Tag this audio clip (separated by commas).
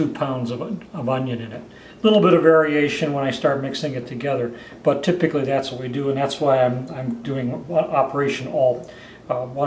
Speech